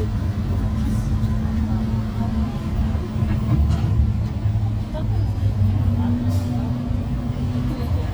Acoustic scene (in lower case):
bus